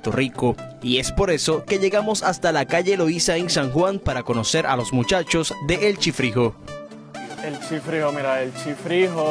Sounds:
Music, Speech

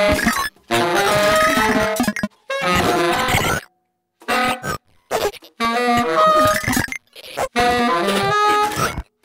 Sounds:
Saxophone, Music, Musical instrument

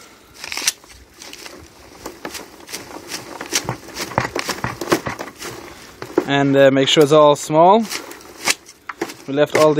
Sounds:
Squish, Speech

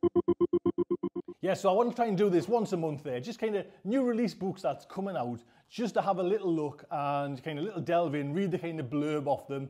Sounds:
Speech, inside a small room

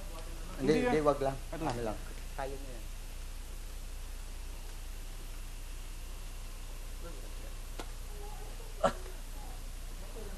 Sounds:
Speech, inside a small room

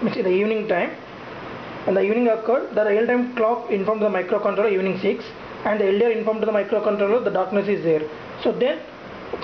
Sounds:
Speech

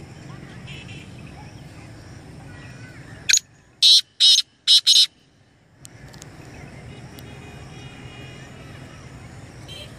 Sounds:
francolin calling

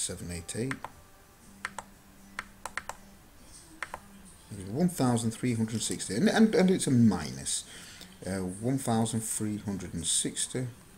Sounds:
Computer keyboard

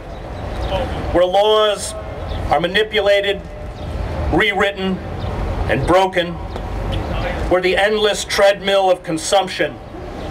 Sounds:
Narration, Male speech, Speech

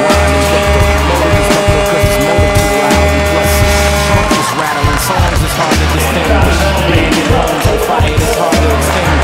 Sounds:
Speech, Music

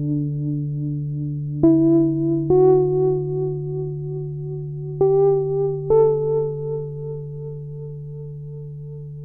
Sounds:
Music

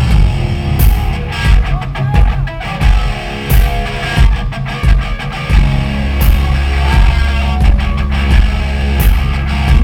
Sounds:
Music

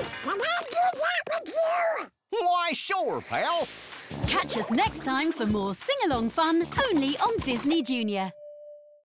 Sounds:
Music, Speech

